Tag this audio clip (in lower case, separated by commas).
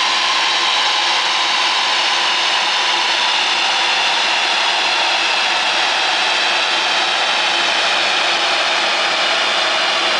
engine, vehicle, car